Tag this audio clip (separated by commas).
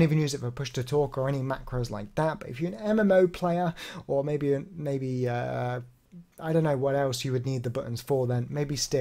Speech